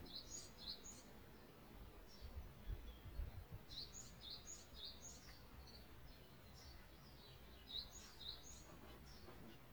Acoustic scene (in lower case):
park